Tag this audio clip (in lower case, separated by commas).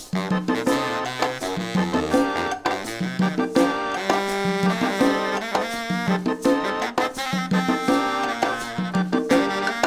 musical instrument, drum kit, drum, music